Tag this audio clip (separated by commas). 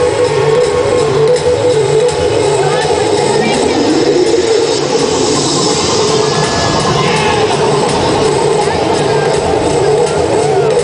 Speech